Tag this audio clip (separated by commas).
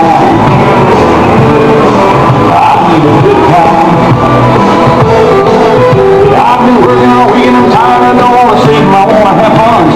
Music